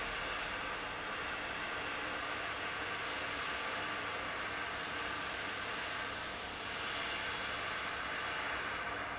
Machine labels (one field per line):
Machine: fan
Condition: abnormal